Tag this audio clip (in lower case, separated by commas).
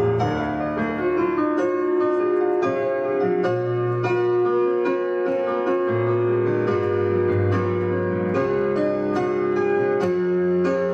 music